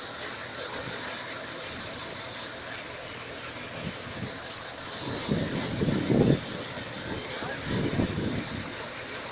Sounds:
vehicle, speech

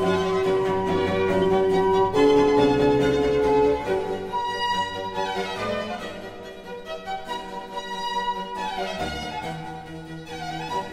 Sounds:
cello, fiddle, musical instrument, music

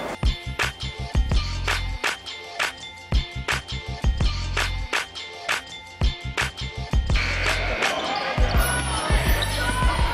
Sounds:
inside a large room or hall, music, speech

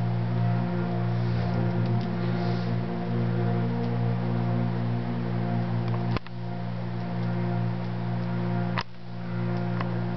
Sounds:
music

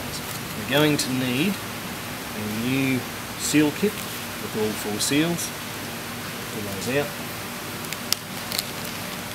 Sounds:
speech

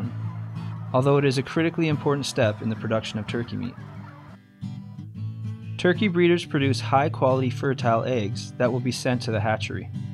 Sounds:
animal, bird, speech, music

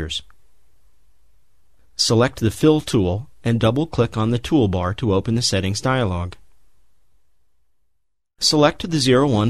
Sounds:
speech

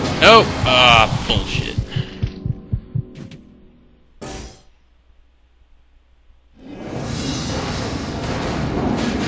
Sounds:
music, speech

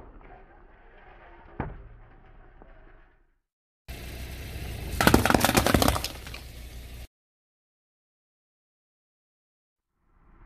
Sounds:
squishing water

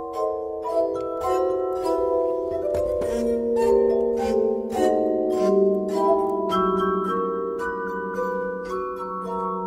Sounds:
chink, music

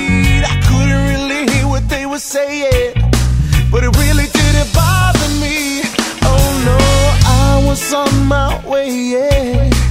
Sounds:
music, reggae

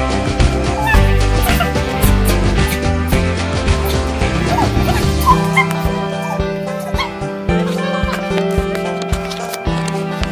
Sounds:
whimper (dog), music

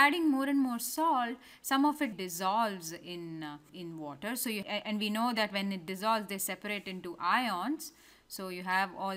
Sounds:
speech

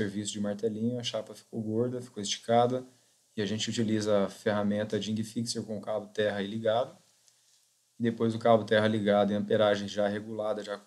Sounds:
speech

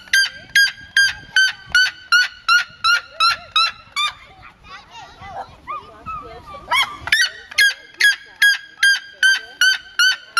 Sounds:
bird squawking

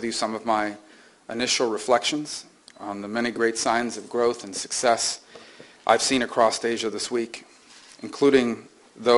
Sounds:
speech, male speech, narration

